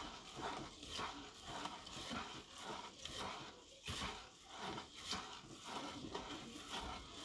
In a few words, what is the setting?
kitchen